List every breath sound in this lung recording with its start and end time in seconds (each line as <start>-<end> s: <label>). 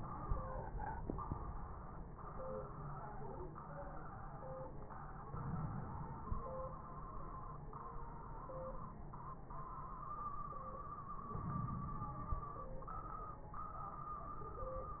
5.31-6.26 s: inhalation
11.34-12.28 s: inhalation
11.34-12.28 s: crackles